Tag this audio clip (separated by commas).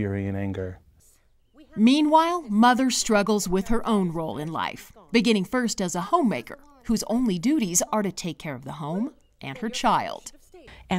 Conversation